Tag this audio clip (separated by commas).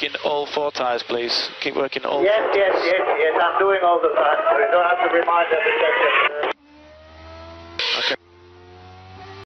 Radio, Speech